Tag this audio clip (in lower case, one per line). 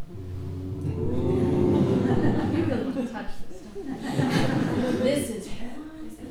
human voice
laughter